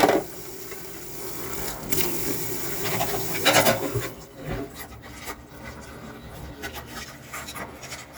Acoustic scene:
kitchen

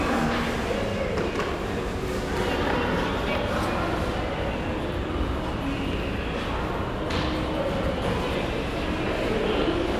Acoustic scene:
crowded indoor space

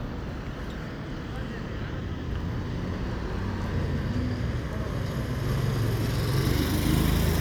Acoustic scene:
residential area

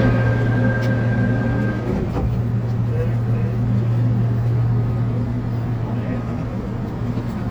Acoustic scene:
subway train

